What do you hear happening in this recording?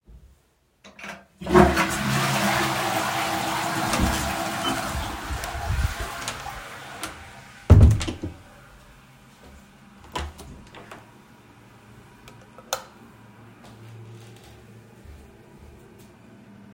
I flushed the toilet and then opened and closed the door. I walked to the bathroom, switched on the light, and walked towards the sink.